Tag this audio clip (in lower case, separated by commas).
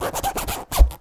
zipper (clothing), home sounds